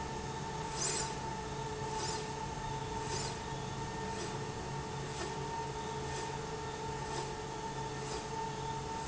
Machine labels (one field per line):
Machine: slide rail